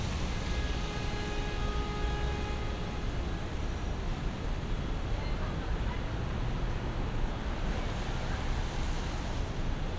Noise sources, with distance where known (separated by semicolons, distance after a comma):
medium-sounding engine, near; car horn; person or small group talking